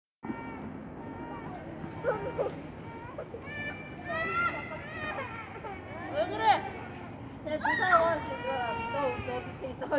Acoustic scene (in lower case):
residential area